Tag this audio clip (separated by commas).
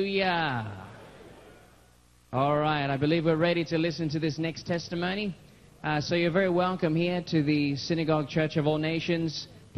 Speech